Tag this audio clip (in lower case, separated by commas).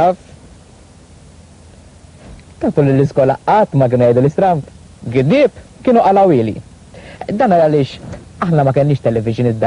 speech